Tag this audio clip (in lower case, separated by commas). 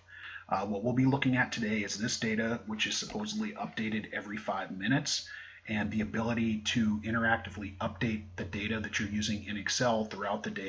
speech